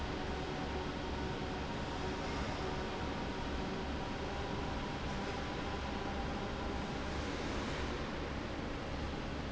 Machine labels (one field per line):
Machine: fan